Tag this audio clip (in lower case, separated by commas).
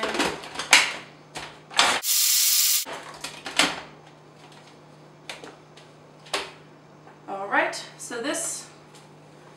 speech, inside a small room